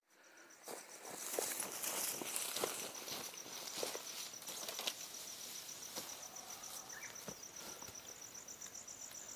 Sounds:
Environmental noise

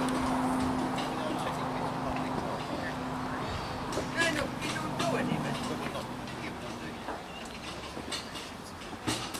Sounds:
Speech

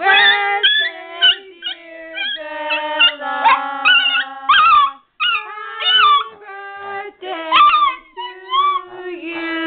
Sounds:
Singing, Dog, Domestic animals, Animal

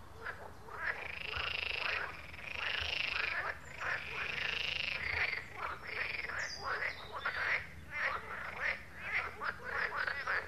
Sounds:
frog croaking

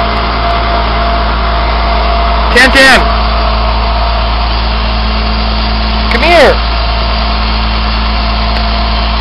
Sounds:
Vehicle, Speech

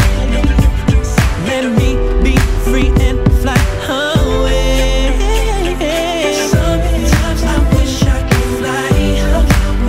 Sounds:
Rhythm and blues

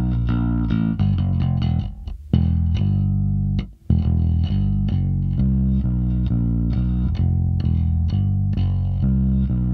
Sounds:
Music

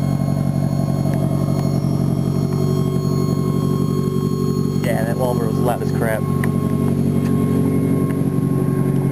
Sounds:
Speech

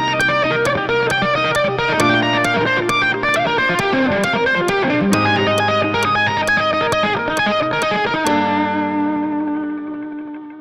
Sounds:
tapping guitar

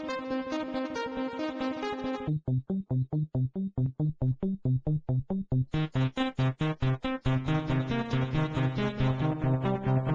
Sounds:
Piano, Music, playing piano, Musical instrument, Keyboard (musical), Synthesizer

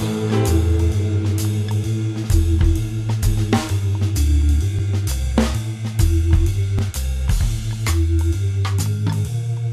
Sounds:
Music

